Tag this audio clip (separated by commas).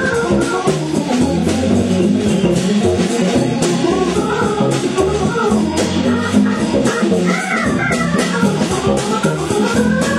Electronic organ, Organ